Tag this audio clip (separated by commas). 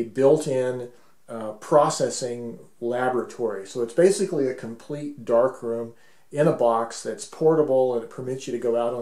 Speech